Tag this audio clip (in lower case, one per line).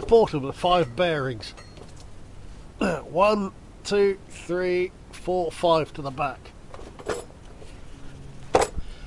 speech